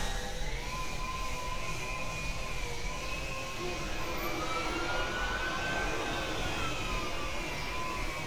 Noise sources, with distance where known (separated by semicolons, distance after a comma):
siren, far